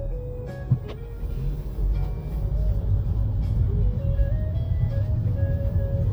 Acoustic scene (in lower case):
car